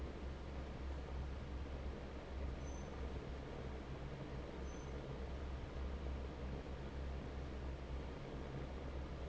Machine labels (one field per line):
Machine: fan